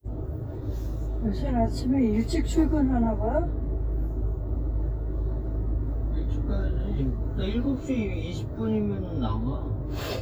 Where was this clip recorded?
in a car